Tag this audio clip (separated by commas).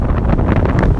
Wind